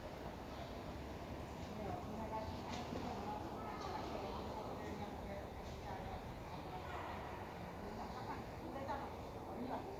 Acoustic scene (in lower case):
park